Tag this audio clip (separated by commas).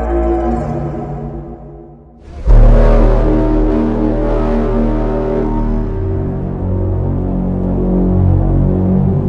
Music